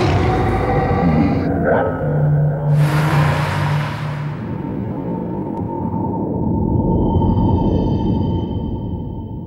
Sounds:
Vehicle, Car

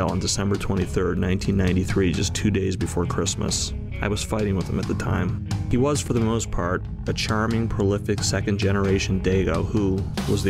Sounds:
Soundtrack music, Music, Speech, Background music

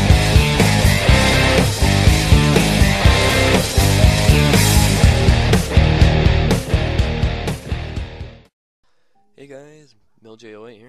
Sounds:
Speech, Rock music, Music

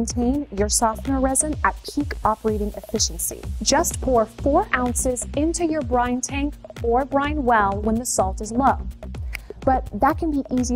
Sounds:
Speech, Music

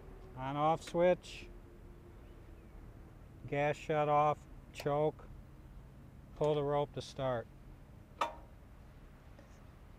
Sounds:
Speech

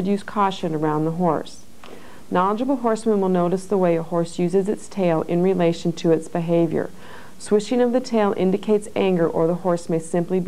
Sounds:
Speech

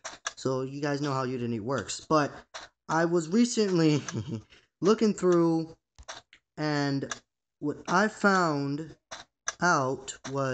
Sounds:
Speech

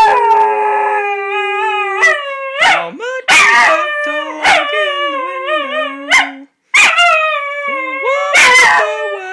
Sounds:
Speech

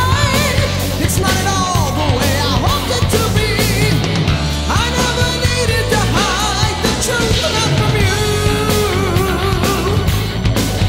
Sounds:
Music

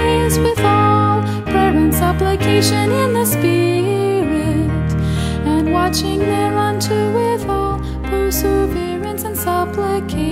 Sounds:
Music

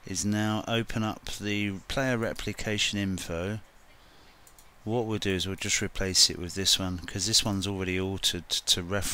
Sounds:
Speech

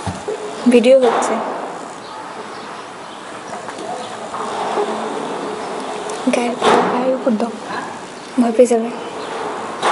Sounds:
Insect

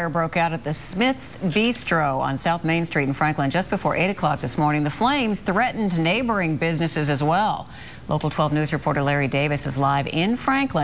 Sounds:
Speech

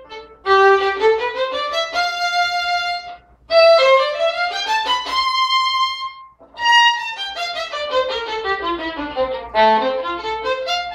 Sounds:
Music, fiddle, Musical instrument

